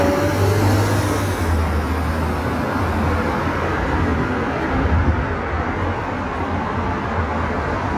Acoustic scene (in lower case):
street